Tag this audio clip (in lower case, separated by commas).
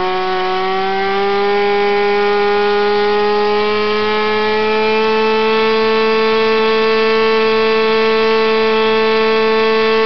medium engine (mid frequency), accelerating, engine